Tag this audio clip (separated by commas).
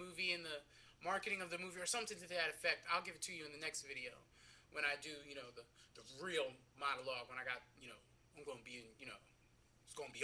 Speech